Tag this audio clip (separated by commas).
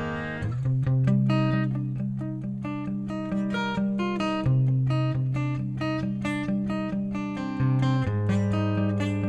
Music